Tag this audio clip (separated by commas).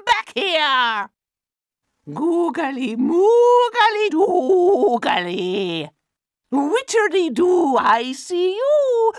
Speech